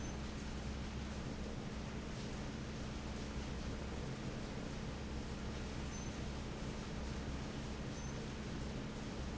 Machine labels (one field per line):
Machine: fan